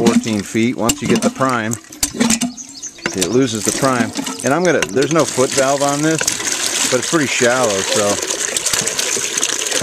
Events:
[0.00, 0.36] generic impact sounds
[0.00, 1.70] man speaking
[0.00, 5.08] drip
[0.82, 1.22] generic impact sounds
[1.45, 1.62] generic impact sounds
[1.78, 5.09] tweet
[1.94, 2.39] generic impact sounds
[2.98, 3.25] generic impact sounds
[2.99, 4.07] man speaking
[3.66, 3.87] generic impact sounds
[4.13, 4.34] generic impact sounds
[4.41, 6.20] man speaking
[4.62, 5.19] generic impact sounds
[5.13, 9.82] gush
[6.85, 8.16] man speaking

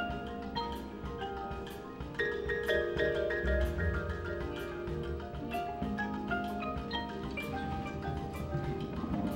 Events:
[0.03, 9.35] music

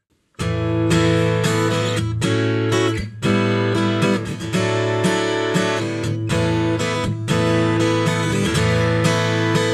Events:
[0.04, 9.73] music

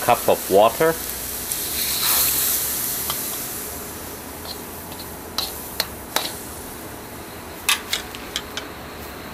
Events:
[0.00, 0.94] male speech
[0.00, 9.33] mechanisms
[1.44, 3.05] pour
[3.05, 3.39] silverware
[4.43, 4.59] silverware
[4.89, 5.04] silverware
[5.36, 5.50] silverware
[5.77, 5.88] silverware
[6.14, 6.36] silverware
[7.66, 8.68] silverware

